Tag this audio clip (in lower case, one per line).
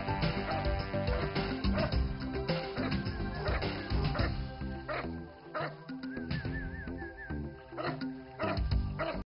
animal
pets
dog
music